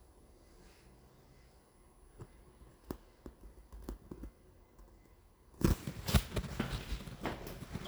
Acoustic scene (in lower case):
elevator